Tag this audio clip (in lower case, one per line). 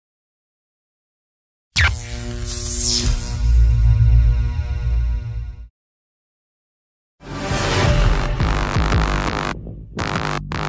music